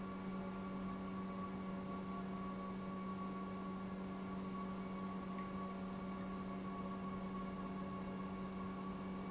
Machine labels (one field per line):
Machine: pump